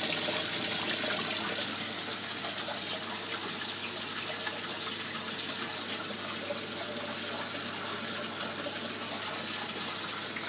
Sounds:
stream

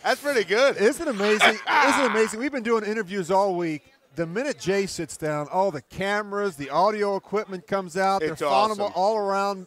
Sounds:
speech

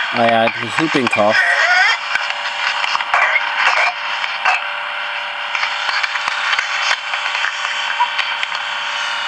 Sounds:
speech

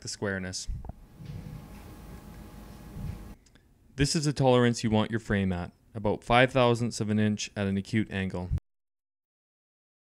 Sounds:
speech

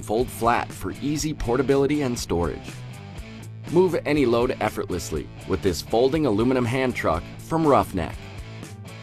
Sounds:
speech
music

